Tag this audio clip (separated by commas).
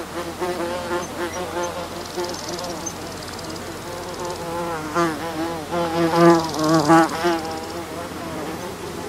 housefly buzzing